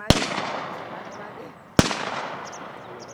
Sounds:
Explosion, Gunshot

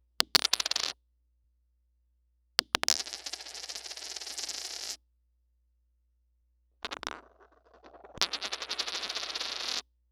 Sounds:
home sounds, Coin (dropping)

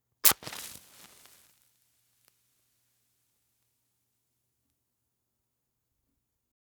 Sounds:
Fire

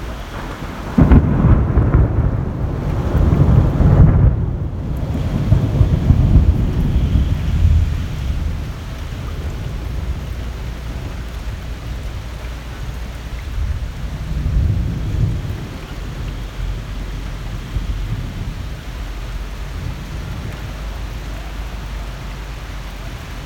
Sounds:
Water, Thunderstorm, Thunder, Rain

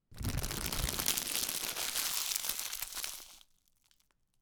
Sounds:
Crackle

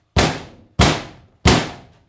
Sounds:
Tools

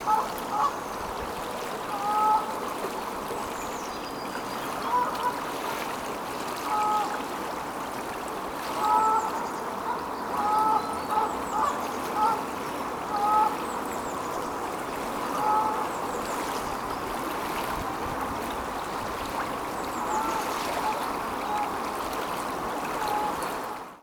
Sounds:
livestock, Animal, Fowl

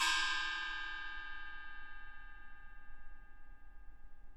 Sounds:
Gong, Music, Musical instrument, Percussion

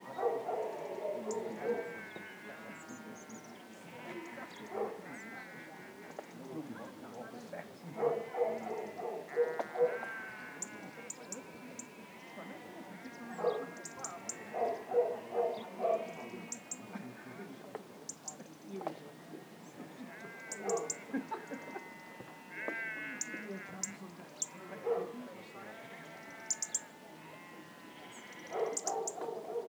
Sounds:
Animal, Human group actions, bird song, Domestic animals, Bark, Bird, Wild animals, Chatter, Chirp, livestock, Dog

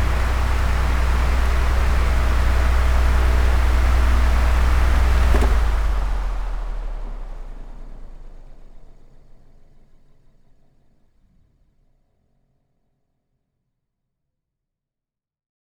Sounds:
Mechanisms, Mechanical fan

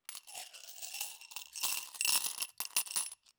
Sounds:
Domestic sounds, Glass, Coin (dropping)

